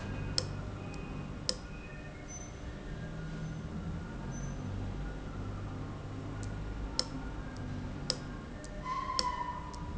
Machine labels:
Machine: valve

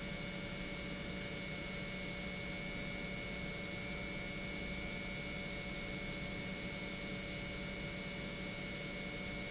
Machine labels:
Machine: pump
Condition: normal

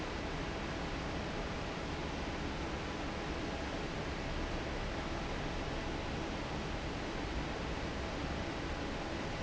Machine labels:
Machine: fan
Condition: normal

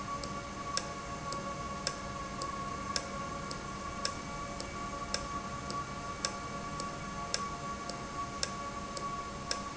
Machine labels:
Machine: valve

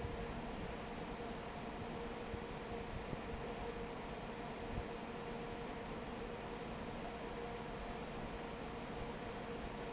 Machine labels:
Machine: fan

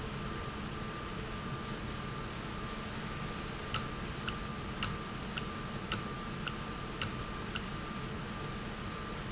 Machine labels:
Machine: valve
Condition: normal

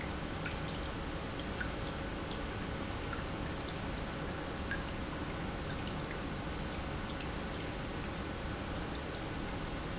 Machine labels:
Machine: pump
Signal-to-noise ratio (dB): -6 dB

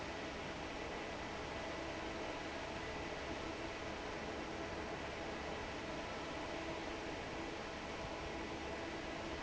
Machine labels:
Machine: fan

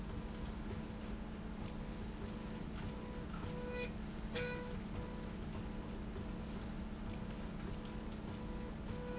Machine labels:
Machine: slide rail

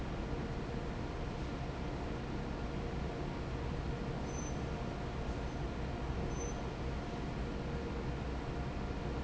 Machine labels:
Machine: fan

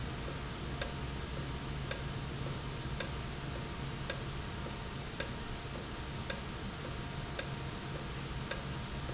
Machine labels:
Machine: valve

